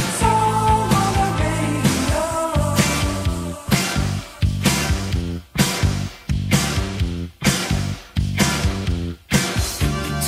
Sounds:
Music

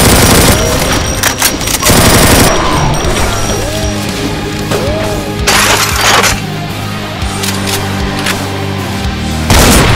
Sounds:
Breaking, Music

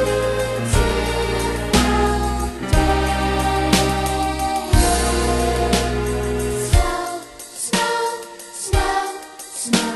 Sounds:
Music

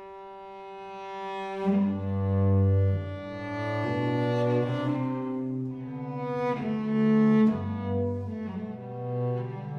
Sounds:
Bowed string instrument, Musical instrument, Cello, Music, playing cello, Double bass

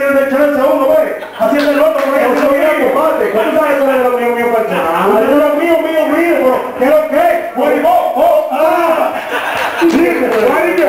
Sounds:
Speech

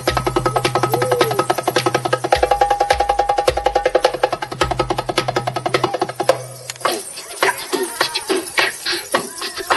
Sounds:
Music, outside, rural or natural

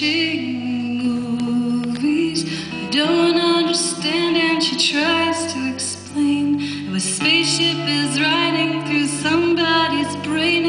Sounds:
Female singing, Music

